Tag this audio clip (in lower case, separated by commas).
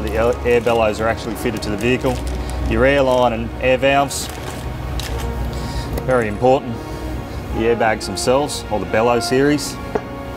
speech, music